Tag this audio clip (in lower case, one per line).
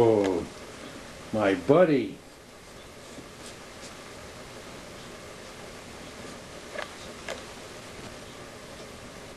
speech